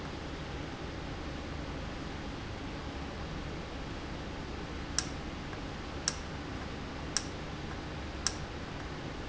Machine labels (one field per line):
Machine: valve